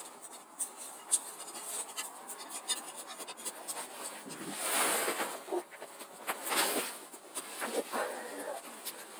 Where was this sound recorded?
on a street